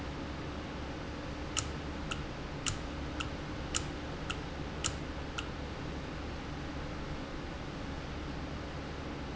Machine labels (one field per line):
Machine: valve